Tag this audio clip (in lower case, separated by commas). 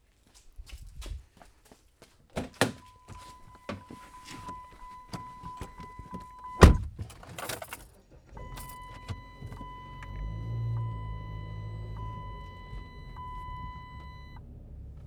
home sounds, engine starting, engine, door, slam